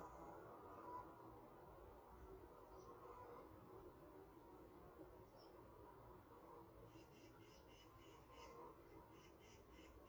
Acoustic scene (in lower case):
park